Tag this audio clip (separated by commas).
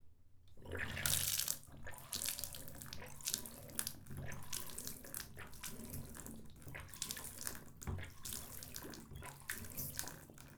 faucet, Domestic sounds